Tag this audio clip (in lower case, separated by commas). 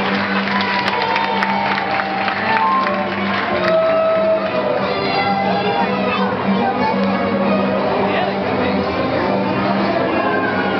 speech, music